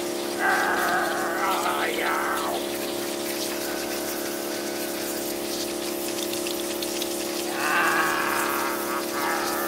A man is growling as water sprays out of a machine